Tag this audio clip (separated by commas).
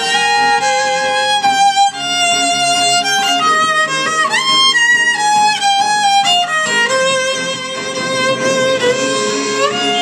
Music, Bowed string instrument, Musical instrument, fiddle